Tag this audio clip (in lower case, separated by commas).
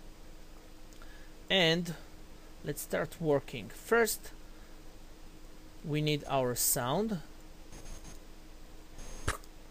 speech